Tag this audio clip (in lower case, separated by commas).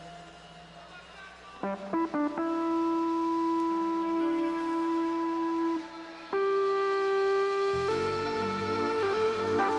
sound effect, music